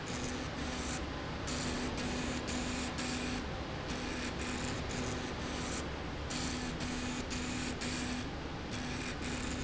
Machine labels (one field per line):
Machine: slide rail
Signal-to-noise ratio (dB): -6 dB